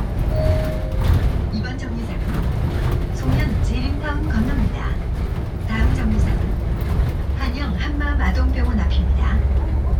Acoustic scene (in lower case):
bus